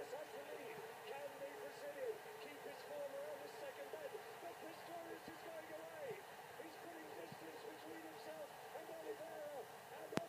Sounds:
inside a small room, speech

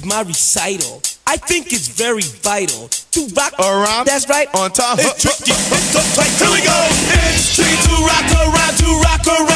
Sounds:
rhythm and blues, music, dance music, jazz

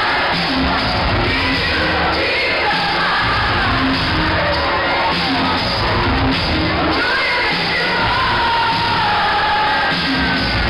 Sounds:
singing, people crowd, music, crowd, cheering

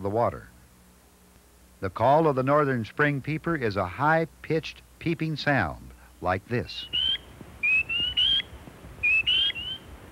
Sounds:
frog, speech

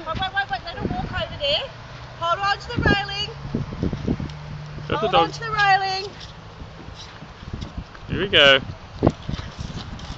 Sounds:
speech

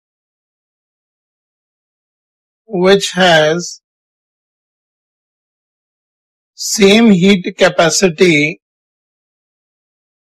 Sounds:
speech

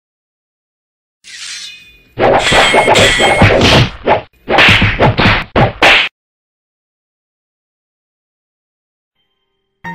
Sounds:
thwack

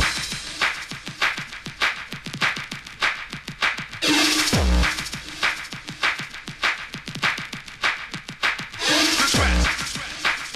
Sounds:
music, electronic music, techno

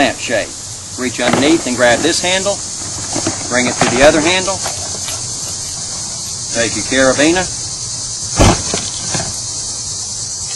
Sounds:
speech

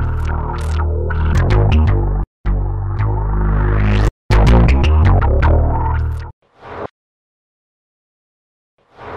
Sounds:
speech, sampler, music

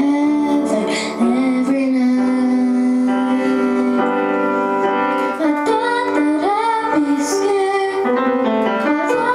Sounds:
music, musical instrument

